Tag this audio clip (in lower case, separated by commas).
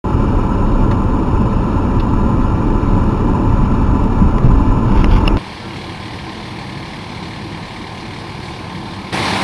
outside, urban or man-made, vehicle